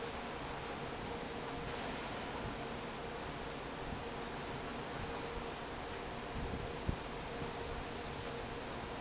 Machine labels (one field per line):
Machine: fan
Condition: normal